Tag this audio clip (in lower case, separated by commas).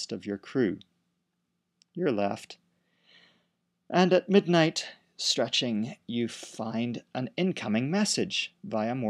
speech